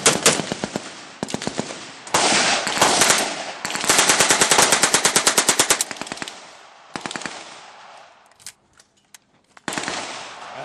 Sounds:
machine gun shooting

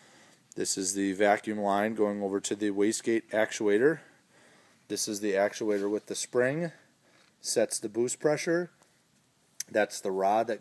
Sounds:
speech

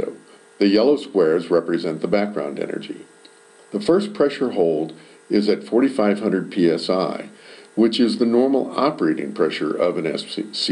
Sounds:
speech

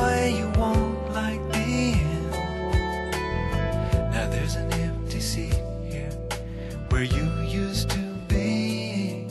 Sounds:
music

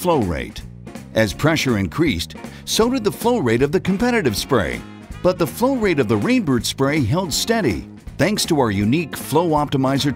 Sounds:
music
speech

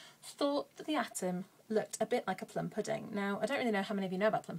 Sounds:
speech

